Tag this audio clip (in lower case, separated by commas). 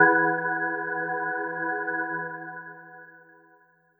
musical instrument, keyboard (musical), organ, music